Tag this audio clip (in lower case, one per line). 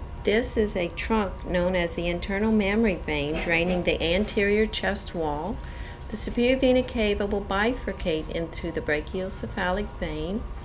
speech